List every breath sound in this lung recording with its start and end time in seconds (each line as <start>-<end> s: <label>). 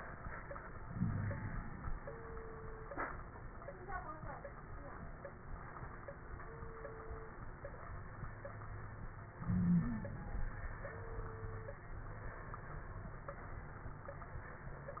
0.85-1.61 s: wheeze
0.85-1.82 s: inhalation
9.41-10.12 s: wheeze
9.41-10.51 s: inhalation